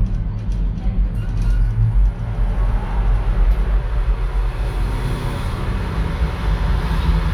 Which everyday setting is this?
elevator